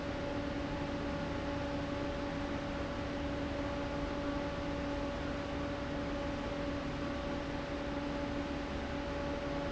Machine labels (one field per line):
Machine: fan